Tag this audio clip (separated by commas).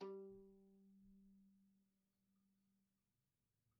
Music, Bowed string instrument, Musical instrument